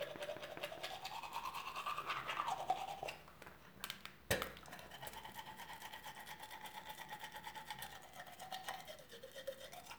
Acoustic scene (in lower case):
restroom